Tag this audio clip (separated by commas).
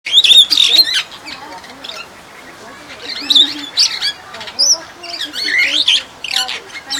Animal, Wild animals, Bird